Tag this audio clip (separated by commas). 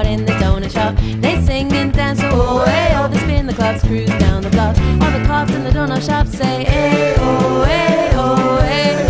Musical instrument, Music, Pop music